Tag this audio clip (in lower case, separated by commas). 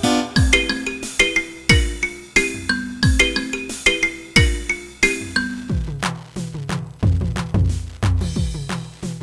percussion, drum kit, rimshot, snare drum, bass drum, drum